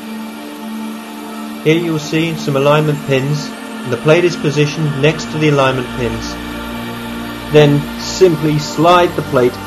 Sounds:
speech, music

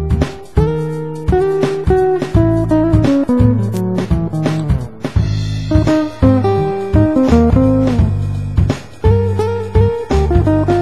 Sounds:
music, musical instrument, plucked string instrument, strum, guitar

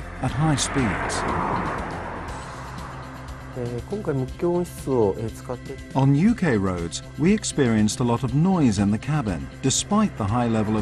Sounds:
music, speech

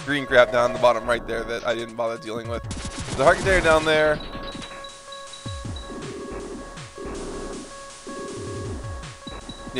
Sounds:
speech, music

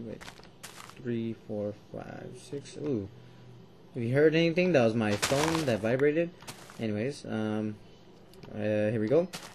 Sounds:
speech

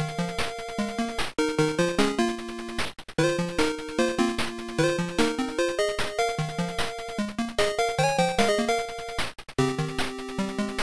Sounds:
video game music

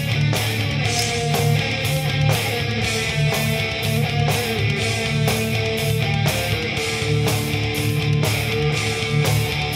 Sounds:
music, rock music, heavy metal

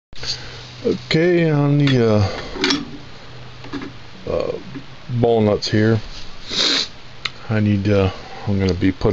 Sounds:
dishes, pots and pans, cutlery

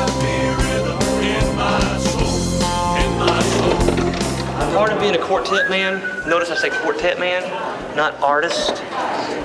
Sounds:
music, speech

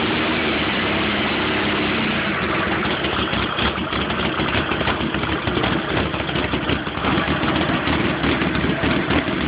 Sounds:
vehicle

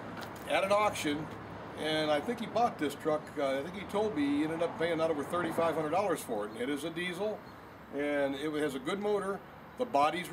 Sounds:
speech

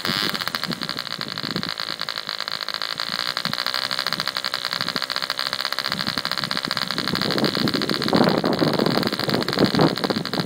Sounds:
engine, accelerating

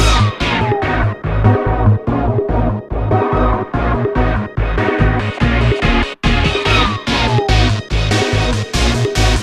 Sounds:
music, disco

